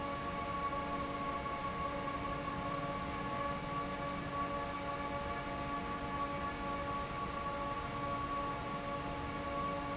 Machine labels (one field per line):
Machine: fan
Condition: normal